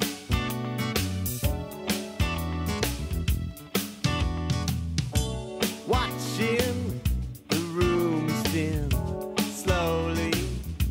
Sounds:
Music

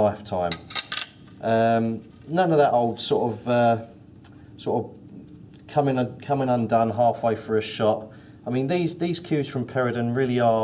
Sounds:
Speech, inside a small room

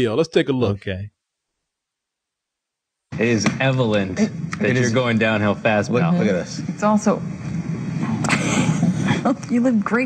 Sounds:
Speech

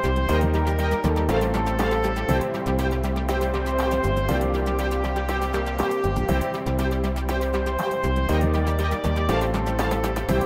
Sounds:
Music

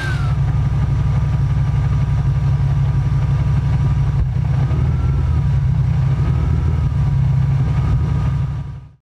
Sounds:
Engine, Vehicle

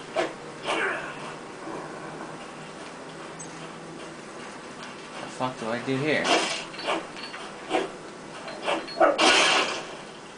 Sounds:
Speech

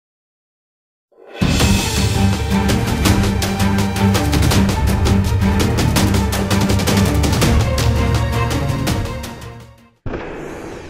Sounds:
Music

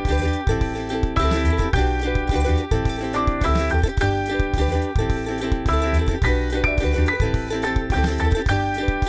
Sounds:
Music

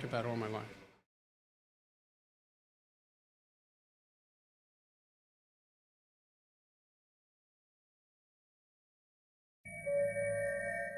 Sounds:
Speech

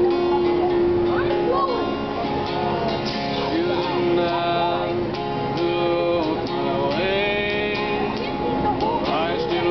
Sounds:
Speech, Music

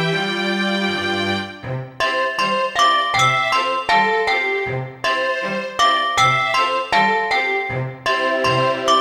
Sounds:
Music

